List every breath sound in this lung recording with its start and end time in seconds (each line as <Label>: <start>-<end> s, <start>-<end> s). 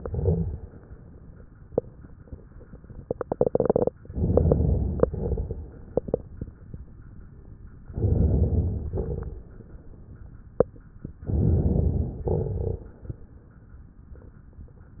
Inhalation: 4.12-5.05 s, 7.91-8.84 s, 11.29-12.22 s
Exhalation: 0.00-0.65 s, 5.08-5.73 s, 8.94-9.58 s, 12.28-12.92 s
Crackles: 0.00-0.65 s, 4.12-5.05 s, 5.08-5.73 s, 7.91-8.84 s, 8.94-9.58 s, 11.29-12.22 s, 12.28-12.92 s